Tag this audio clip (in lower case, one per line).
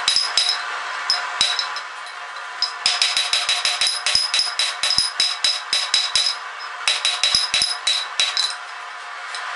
forging swords